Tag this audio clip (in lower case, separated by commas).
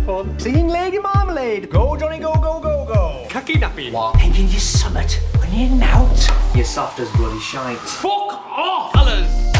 speech, music